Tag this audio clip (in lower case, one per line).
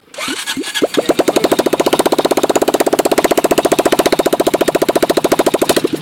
motor vehicle (road)
vehicle
motorcycle